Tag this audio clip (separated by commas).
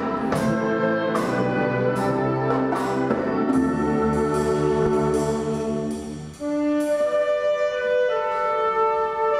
Orchestra, Classical music, Music